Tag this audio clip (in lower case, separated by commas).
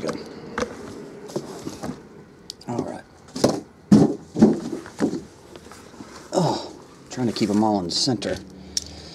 speech